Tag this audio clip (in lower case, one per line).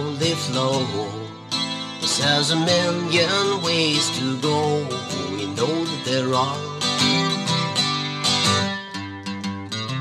music